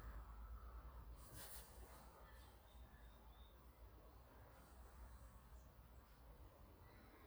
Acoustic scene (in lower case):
park